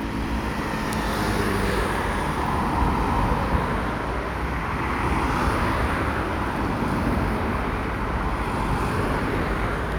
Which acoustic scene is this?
street